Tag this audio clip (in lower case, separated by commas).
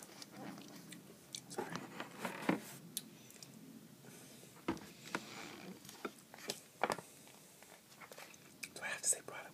speech